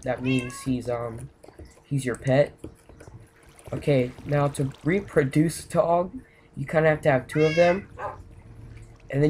A young male is speaking, a cat is meowing, water is splashing and gurgling, and a dog barks